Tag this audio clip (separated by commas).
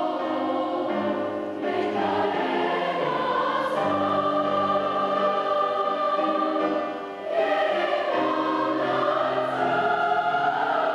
singing choir